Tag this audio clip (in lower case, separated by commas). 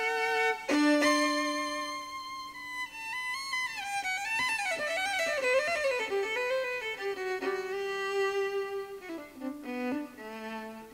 string section